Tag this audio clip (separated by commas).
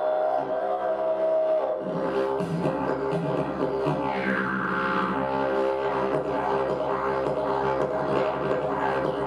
Didgeridoo, Musical instrument, Music